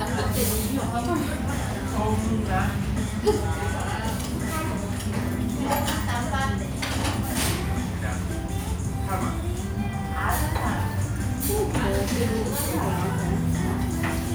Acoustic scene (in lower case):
restaurant